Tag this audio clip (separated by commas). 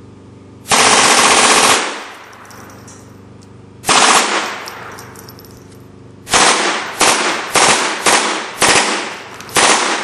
machine gun shooting